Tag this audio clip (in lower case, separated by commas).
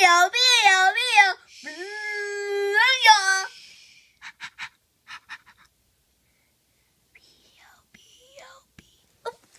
speech